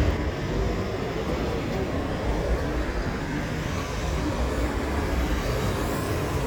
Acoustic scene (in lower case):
residential area